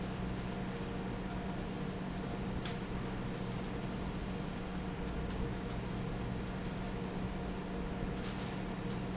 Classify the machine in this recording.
fan